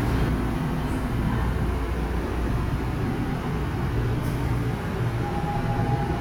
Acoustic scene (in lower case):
subway station